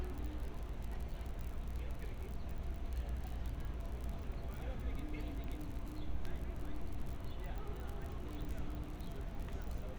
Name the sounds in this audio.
person or small group talking